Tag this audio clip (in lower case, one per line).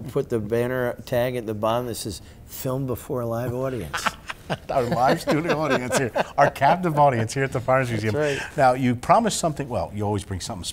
speech